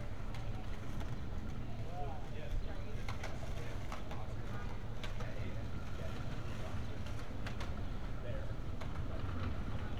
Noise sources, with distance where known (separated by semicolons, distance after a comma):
person or small group talking, far